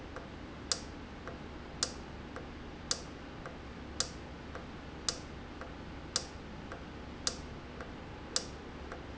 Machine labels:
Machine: valve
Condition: normal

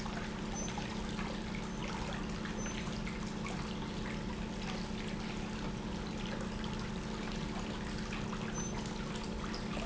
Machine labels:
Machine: pump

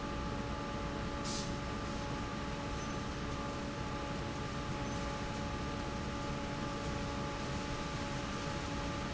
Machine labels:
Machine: fan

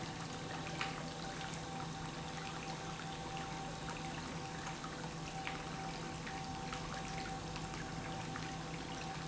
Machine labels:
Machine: pump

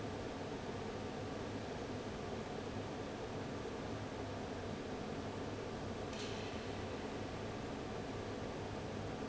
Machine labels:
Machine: fan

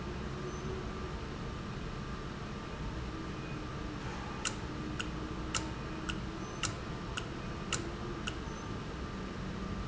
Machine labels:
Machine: valve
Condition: normal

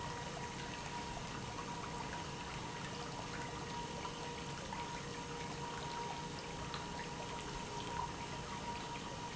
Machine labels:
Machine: pump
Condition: normal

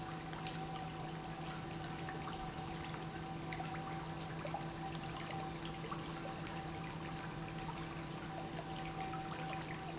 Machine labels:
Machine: pump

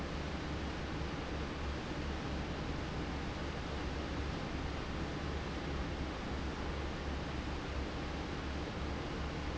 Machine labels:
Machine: fan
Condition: abnormal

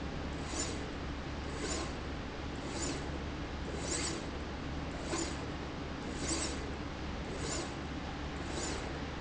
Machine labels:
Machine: slide rail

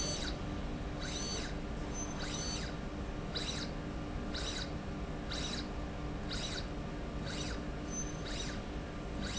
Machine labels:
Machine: slide rail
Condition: abnormal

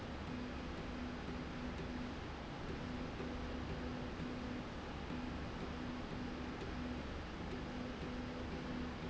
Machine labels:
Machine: slide rail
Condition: normal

